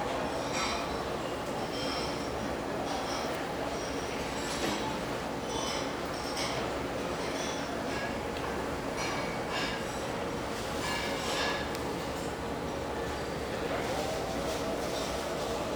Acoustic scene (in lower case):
restaurant